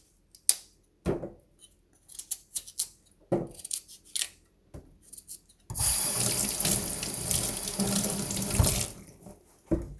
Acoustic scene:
kitchen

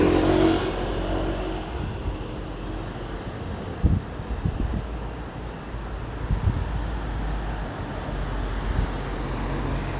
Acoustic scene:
street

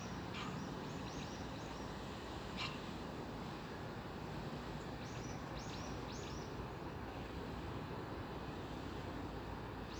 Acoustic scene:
park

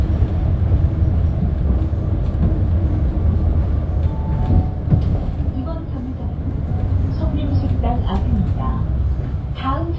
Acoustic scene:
bus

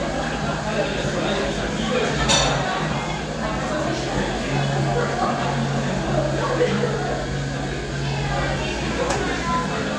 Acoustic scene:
crowded indoor space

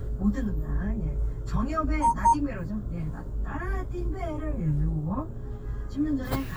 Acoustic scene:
car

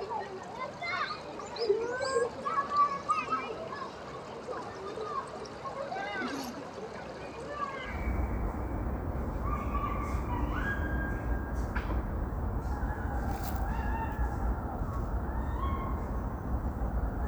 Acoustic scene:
park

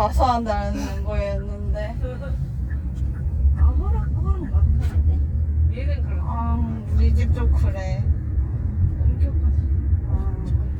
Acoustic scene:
car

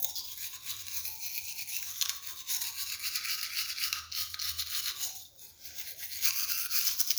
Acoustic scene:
restroom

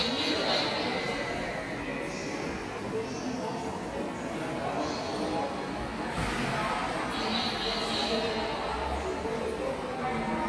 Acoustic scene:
subway station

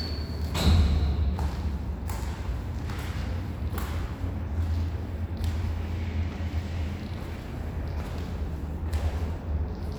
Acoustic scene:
elevator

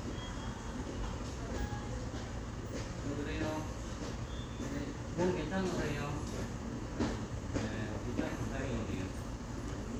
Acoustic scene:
subway station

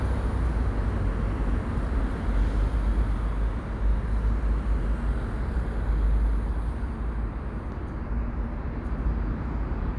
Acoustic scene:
residential area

